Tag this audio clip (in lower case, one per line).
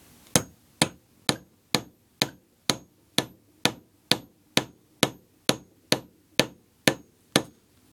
tools
hammer